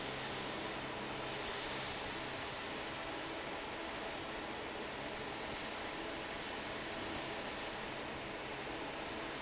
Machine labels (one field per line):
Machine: fan